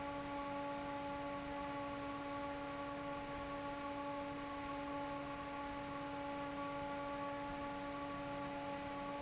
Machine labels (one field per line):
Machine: fan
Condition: normal